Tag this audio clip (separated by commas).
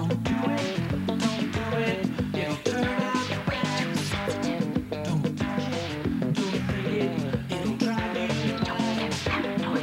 Music